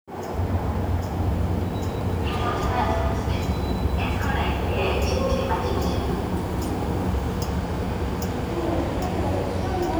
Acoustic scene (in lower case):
subway station